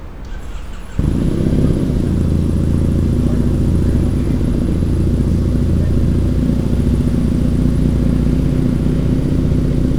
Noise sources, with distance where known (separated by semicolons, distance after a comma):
medium-sounding engine, near